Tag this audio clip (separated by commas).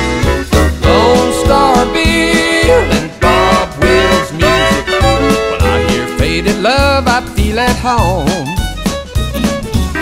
Music